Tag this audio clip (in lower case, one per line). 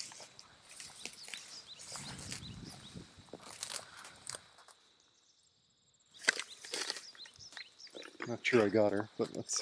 animal
walk
outside, rural or natural
speech